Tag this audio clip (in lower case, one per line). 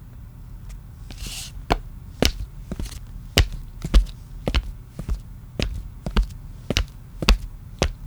footsteps